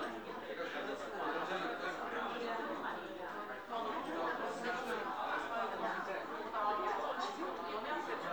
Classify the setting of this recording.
crowded indoor space